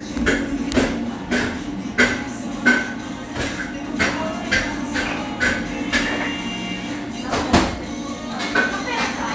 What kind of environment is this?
cafe